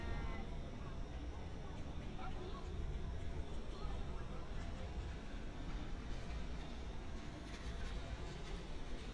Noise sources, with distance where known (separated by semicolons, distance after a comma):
person or small group talking